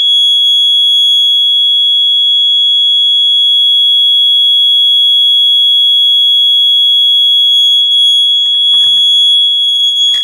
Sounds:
fire alarm

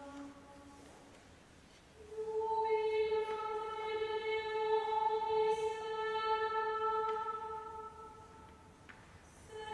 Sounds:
music

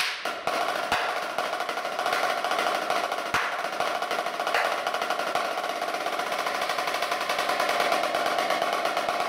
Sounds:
percussion, music

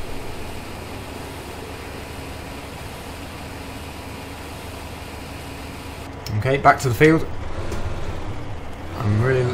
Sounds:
vehicle, outside, urban or man-made, speech

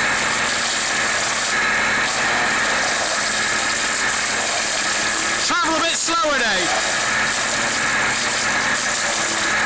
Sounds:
speech

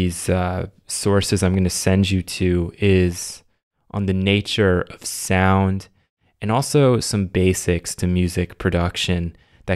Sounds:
speech

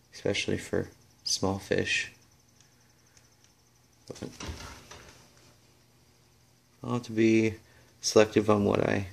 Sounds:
speech, inside a small room

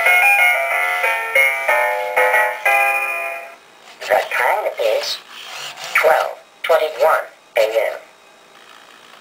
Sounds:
music, speech

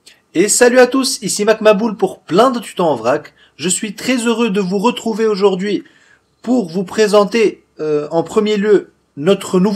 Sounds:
speech

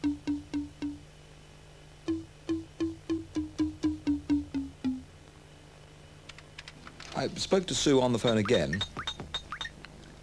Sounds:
speech, music

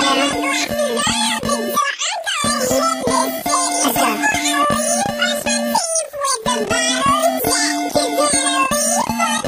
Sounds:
singing

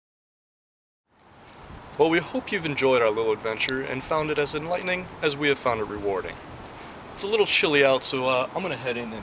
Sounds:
speech, outside, urban or man-made

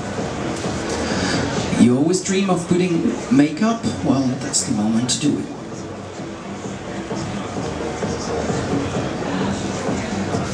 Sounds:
speech, music

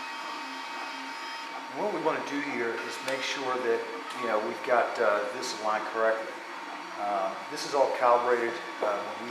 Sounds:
speech

